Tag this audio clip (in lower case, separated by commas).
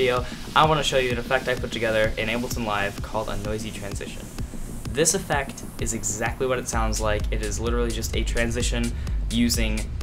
music, speech